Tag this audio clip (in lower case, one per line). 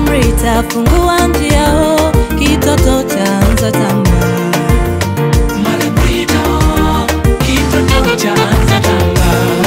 jingle (music)
music